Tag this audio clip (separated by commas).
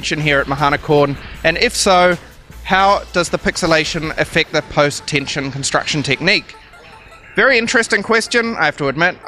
Music, Speech